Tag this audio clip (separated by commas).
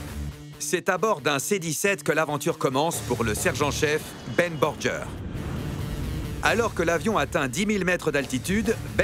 Music, Speech